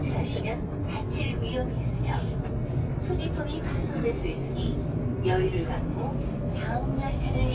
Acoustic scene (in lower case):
subway train